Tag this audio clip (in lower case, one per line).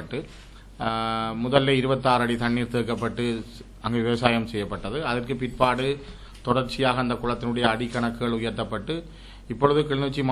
speech